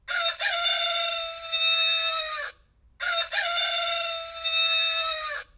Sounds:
livestock, Chicken, Fowl, Animal

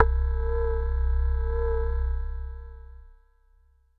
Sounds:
Keyboard (musical), Musical instrument, Music

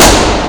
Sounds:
gunfire, Explosion

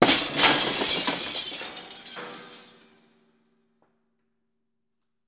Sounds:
Glass, Shatter

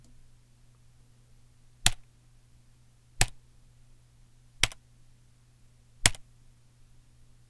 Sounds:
Domestic sounds, Typing

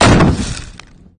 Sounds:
Explosion, Boom

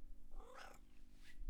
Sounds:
Cat, Meow, Animal, pets

